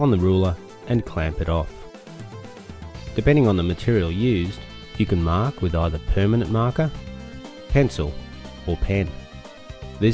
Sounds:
speech
music

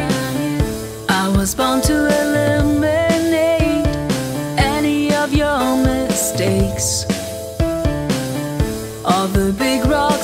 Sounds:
music

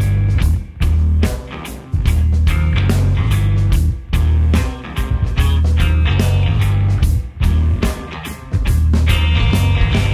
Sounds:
music

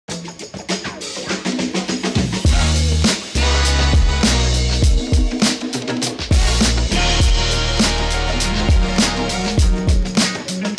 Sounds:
music

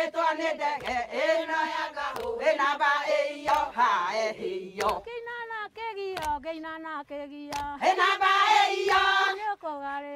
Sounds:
female singing

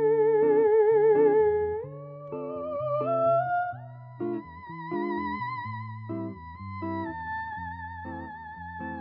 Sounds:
playing theremin

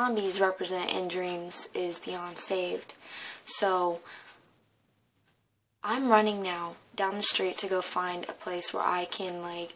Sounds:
speech

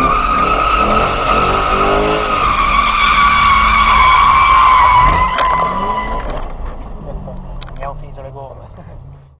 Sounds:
speech

